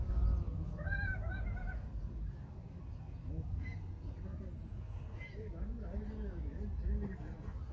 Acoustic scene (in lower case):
park